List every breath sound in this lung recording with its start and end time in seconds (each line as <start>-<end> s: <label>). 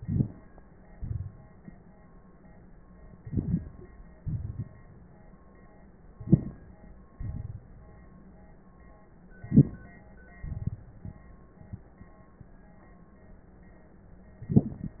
0.97-1.61 s: exhalation
3.25-3.89 s: inhalation
4.19-4.78 s: exhalation
6.17-6.78 s: inhalation
7.19-7.63 s: exhalation
9.39-9.93 s: inhalation
10.42-11.31 s: exhalation